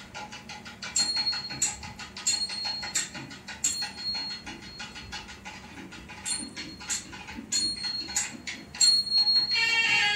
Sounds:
inside a small room, music

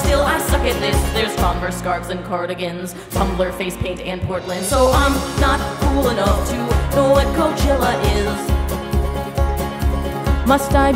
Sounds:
inside a small room, singing, music

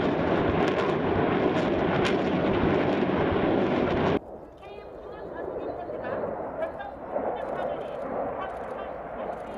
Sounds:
airplane flyby

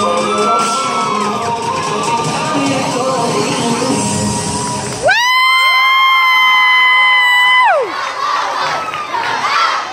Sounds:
crowd, children shouting, cheering

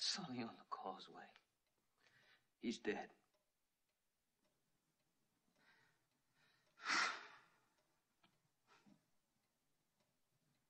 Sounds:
inside a small room, speech

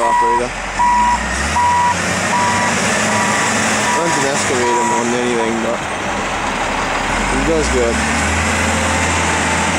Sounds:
reversing beeps, vehicle, speech

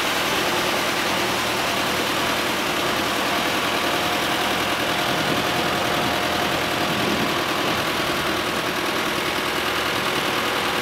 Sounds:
vehicle

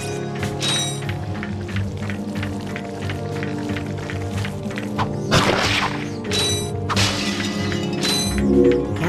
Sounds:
speech, music

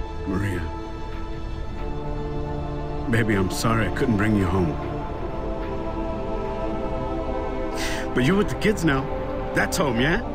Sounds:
music, speech

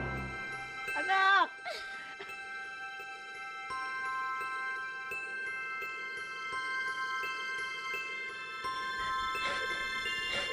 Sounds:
mallet percussion, xylophone, glockenspiel

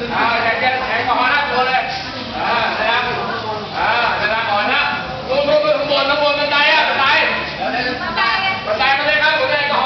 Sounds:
speech, inside a public space

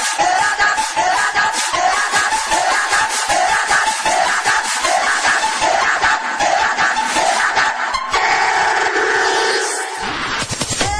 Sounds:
music, techno

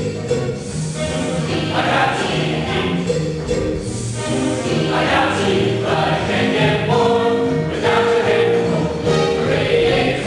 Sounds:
music, choir

